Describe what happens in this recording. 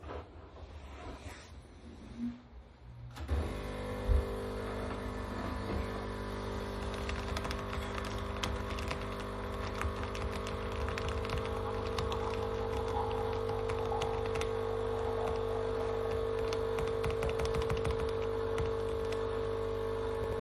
I sat at my desk, then walked over to the coffee machine, turned it on, returned to the computer, and continued playing the video game and typing on my keybord